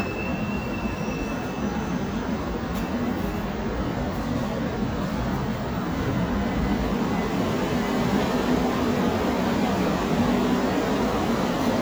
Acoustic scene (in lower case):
subway station